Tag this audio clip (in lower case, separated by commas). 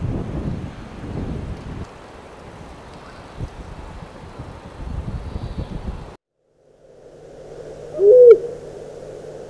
owl, hoot